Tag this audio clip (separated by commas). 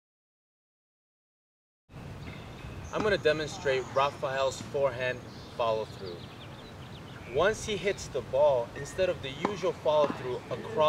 Speech